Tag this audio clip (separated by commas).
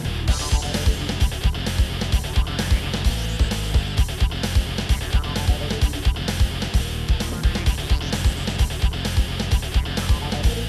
Music